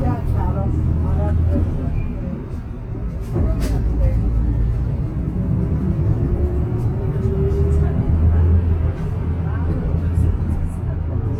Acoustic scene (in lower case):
bus